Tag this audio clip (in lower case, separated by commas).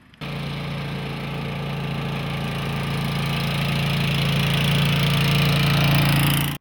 engine, motor vehicle (road), vehicle